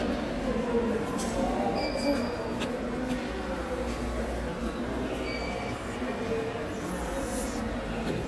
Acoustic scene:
subway station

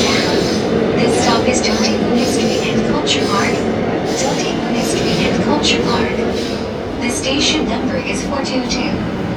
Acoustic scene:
subway train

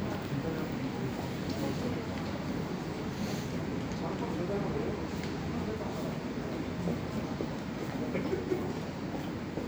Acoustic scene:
subway station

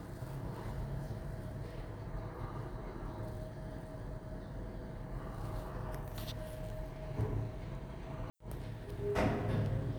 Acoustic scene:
elevator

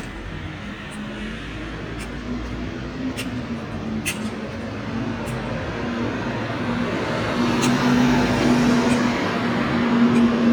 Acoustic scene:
street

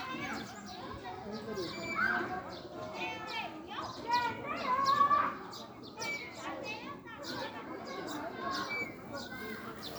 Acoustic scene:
residential area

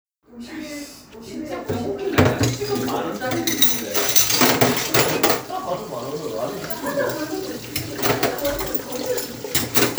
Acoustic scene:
kitchen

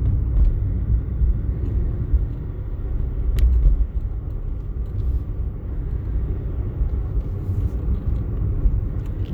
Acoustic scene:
car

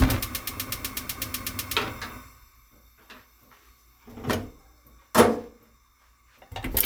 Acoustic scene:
kitchen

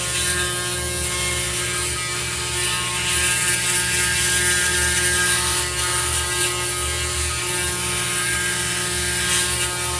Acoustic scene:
restroom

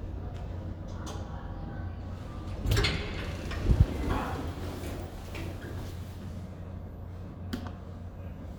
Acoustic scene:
elevator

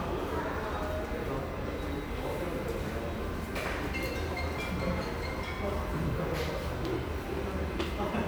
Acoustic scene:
subway station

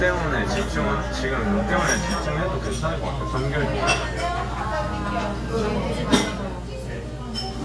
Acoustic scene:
restaurant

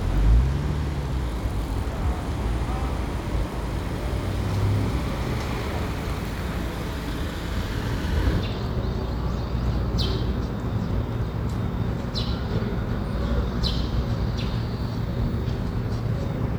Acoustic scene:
residential area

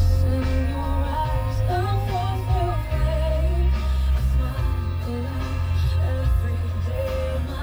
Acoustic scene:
car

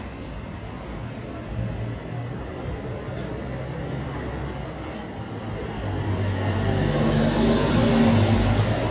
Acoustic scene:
street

